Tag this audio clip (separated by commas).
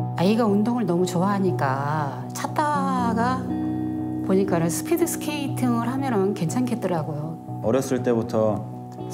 Music, Speech